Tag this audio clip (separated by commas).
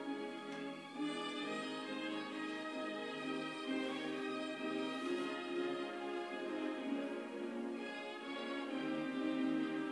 Bowed string instrument, String section, fiddle